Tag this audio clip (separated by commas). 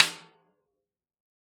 Drum, Snare drum, Percussion, Musical instrument, Music